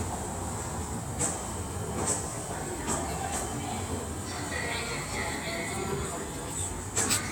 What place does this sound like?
subway station